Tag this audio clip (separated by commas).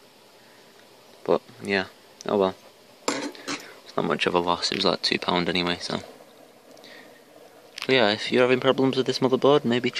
silverware, eating with cutlery